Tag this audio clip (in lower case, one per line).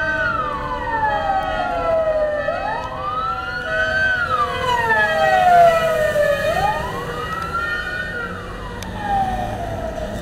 fire truck siren